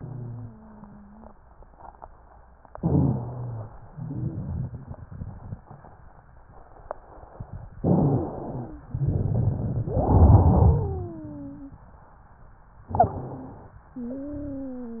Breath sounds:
0.00-1.39 s: wheeze
2.75-3.76 s: inhalation
2.75-3.76 s: wheeze
3.85-5.00 s: wheeze
3.87-5.64 s: exhalation
7.79-8.90 s: inhalation
7.79-8.90 s: wheeze
8.91-9.90 s: exhalation
8.91-9.90 s: crackles
9.84-11.83 s: inhalation
9.84-11.83 s: wheeze
12.89-13.61 s: wheeze
12.89-13.79 s: exhalation
13.89-15.00 s: wheeze

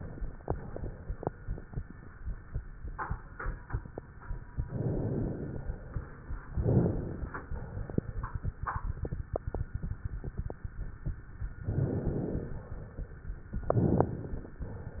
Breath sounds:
4.62-5.59 s: inhalation
5.59-6.55 s: exhalation
6.59-7.52 s: inhalation
7.54-8.42 s: exhalation
11.62-12.50 s: inhalation
12.50-13.57 s: exhalation
13.67-14.58 s: inhalation
14.58-15.00 s: exhalation

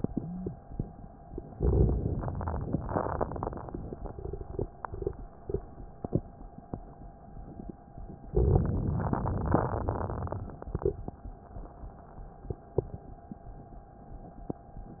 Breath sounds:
1.56-2.79 s: inhalation
1.56-2.79 s: crackles
2.90-3.99 s: exhalation
2.90-3.99 s: crackles
8.31-9.54 s: crackles
9.64-10.87 s: exhalation
9.64-10.87 s: crackles

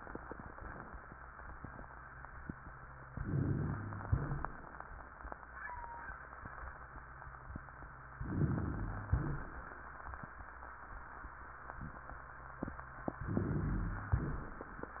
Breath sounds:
3.13-4.04 s: inhalation
4.04-4.72 s: exhalation
4.04-4.72 s: rhonchi
8.22-9.07 s: inhalation
9.07-9.68 s: exhalation
9.07-9.68 s: rhonchi
13.26-14.12 s: inhalation
14.12-14.71 s: exhalation
14.12-14.71 s: rhonchi

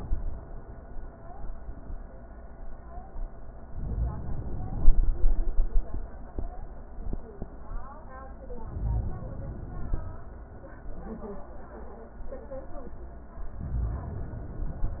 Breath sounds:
3.72-5.17 s: inhalation
8.57-10.02 s: inhalation

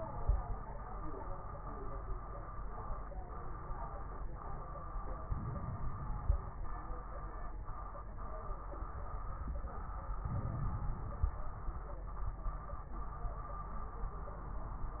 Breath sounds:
5.30-6.53 s: inhalation
5.30-6.53 s: crackles
10.19-11.42 s: inhalation
10.19-11.42 s: crackles

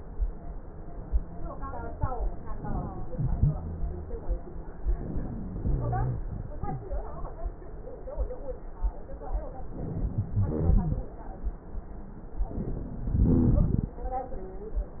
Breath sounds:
2.47-3.08 s: inhalation
3.09-3.61 s: exhalation
3.09-3.61 s: rhonchi
4.99-5.60 s: inhalation
5.62-6.22 s: exhalation
5.64-6.24 s: rhonchi
9.77-10.38 s: inhalation
10.44-11.04 s: rhonchi
10.46-11.06 s: exhalation
12.58-13.19 s: inhalation
13.17-13.78 s: exhalation
13.19-13.79 s: rhonchi

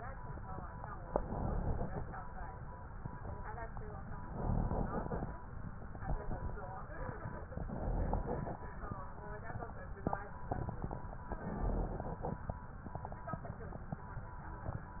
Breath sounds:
0.97-2.09 s: inhalation
4.19-5.31 s: inhalation
7.45-8.57 s: inhalation
11.27-12.39 s: inhalation

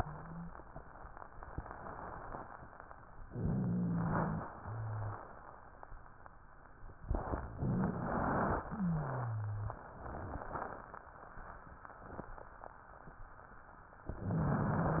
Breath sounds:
0.00-0.48 s: wheeze
3.22-4.38 s: inhalation
3.22-4.38 s: wheeze
4.58-5.22 s: wheeze
7.52-8.66 s: inhalation
7.52-8.66 s: wheeze
8.70-9.82 s: wheeze
14.14-15.00 s: inhalation
14.14-15.00 s: wheeze

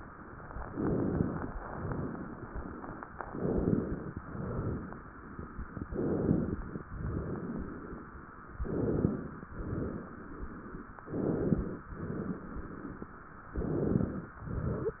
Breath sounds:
0.66-1.45 s: inhalation
1.45-3.02 s: exhalation
3.23-4.22 s: inhalation
4.22-5.21 s: exhalation
5.75-6.80 s: inhalation
6.91-8.08 s: exhalation
8.50-9.51 s: inhalation
9.55-10.88 s: exhalation
11.06-11.88 s: inhalation
11.94-13.27 s: exhalation
13.51-14.34 s: inhalation
14.38-15.00 s: exhalation

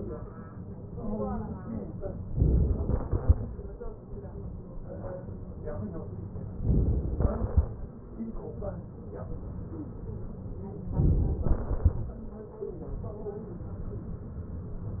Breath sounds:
2.39-3.07 s: inhalation
3.07-4.54 s: exhalation
6.63-7.24 s: inhalation
7.24-8.16 s: exhalation
10.94-11.46 s: inhalation
11.46-12.62 s: exhalation

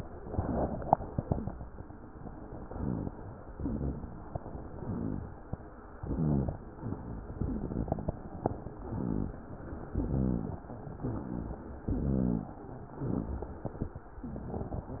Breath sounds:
2.66-3.19 s: inhalation
2.66-3.19 s: rhonchi
3.47-4.37 s: exhalation
3.47-4.37 s: rhonchi
4.67-5.41 s: inhalation
4.67-5.41 s: rhonchi
6.00-6.74 s: exhalation
6.00-6.74 s: rhonchi
8.75-9.49 s: inhalation
8.75-9.49 s: rhonchi
9.94-10.68 s: exhalation
9.94-10.68 s: rhonchi
11.02-11.82 s: inhalation
11.02-11.82 s: rhonchi
11.92-12.62 s: exhalation
11.92-12.62 s: rhonchi
13.00-13.70 s: inhalation
13.00-13.70 s: rhonchi
14.25-15.00 s: exhalation
14.25-15.00 s: rhonchi

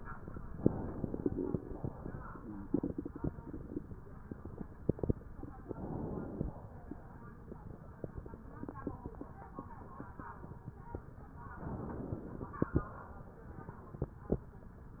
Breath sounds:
0.58-1.87 s: inhalation
1.87-2.71 s: exhalation
5.65-6.49 s: inhalation
11.58-12.59 s: inhalation
12.59-14.07 s: exhalation

